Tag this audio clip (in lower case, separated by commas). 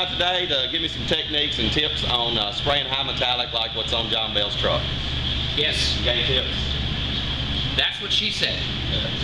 speech